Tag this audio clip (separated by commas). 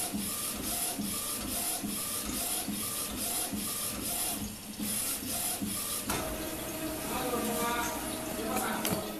printer printing